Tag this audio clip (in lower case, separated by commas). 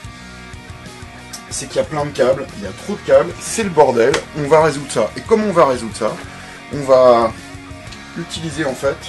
music, speech